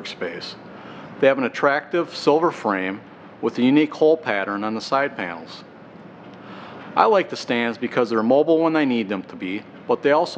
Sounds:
speech

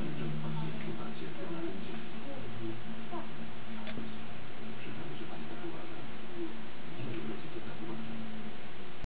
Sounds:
speech

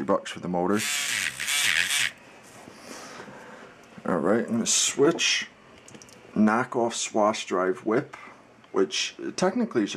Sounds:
speech

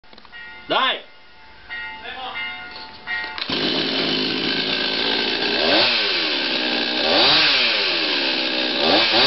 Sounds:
chainsaw
speech

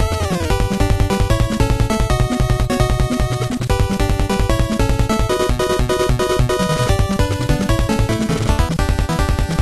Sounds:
music

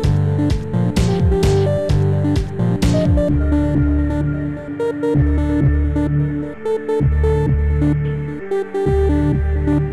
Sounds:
electronica
ambient music

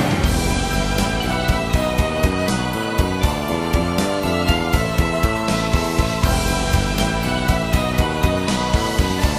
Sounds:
music

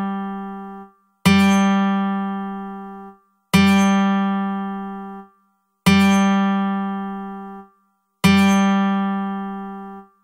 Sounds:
music

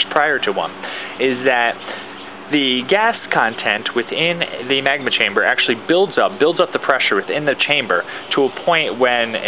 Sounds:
speech

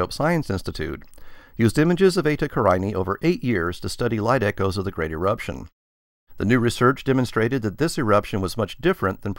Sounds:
speech

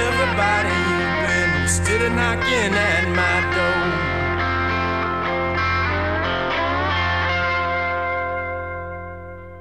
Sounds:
musical instrument
guitar
music

